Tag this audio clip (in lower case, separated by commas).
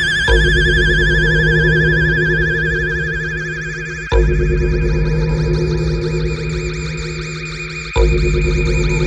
music